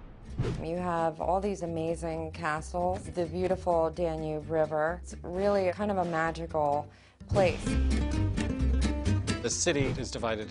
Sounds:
speech, music

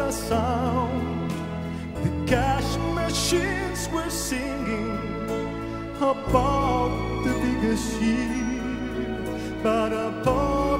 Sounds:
christmas music, music

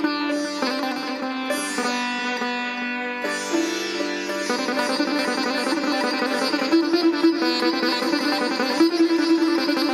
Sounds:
sitar, music

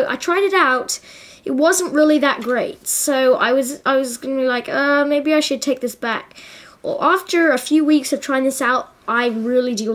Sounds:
speech

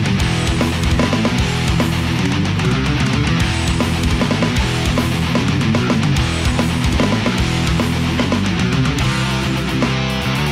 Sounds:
music

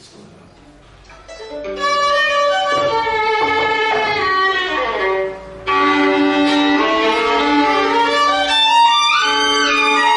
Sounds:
violin, bowed string instrument

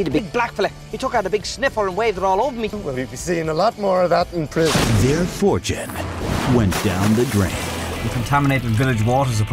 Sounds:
stream, music, speech

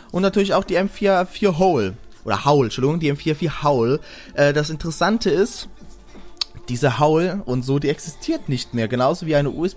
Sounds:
speech, music

